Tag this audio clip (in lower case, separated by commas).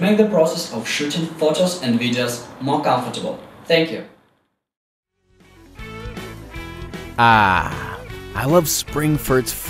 music, speech